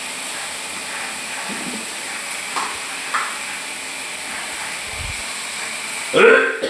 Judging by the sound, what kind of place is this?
restroom